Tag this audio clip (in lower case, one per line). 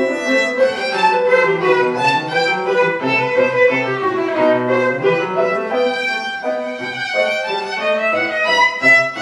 music
violin
musical instrument